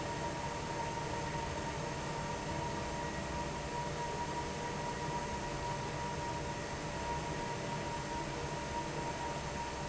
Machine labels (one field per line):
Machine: fan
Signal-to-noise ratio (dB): -6 dB